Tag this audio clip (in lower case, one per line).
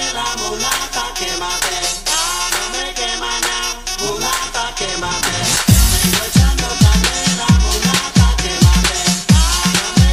disco
house music
electronic music
music